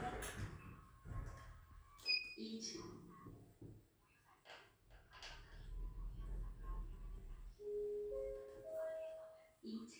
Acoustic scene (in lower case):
elevator